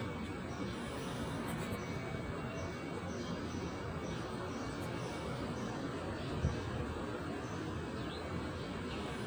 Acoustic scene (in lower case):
residential area